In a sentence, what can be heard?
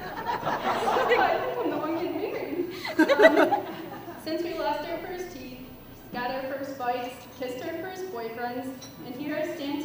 The crowd is laughing, she is speaking